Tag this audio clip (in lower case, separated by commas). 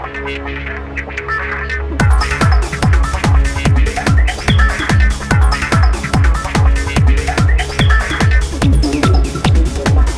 music